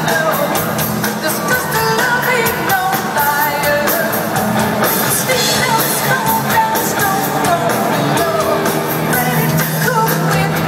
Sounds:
music, inside a large room or hall, singing

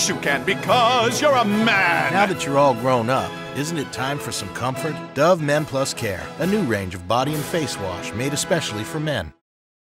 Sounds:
music, speech

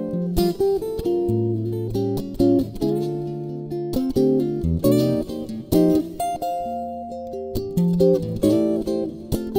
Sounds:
music, musical instrument, guitar, acoustic guitar, plucked string instrument

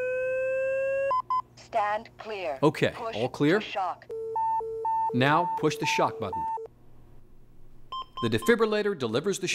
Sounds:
inside a small room, speech

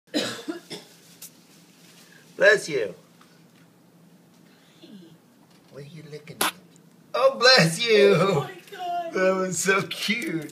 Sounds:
speech

